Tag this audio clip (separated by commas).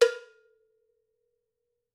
Bell, Cowbell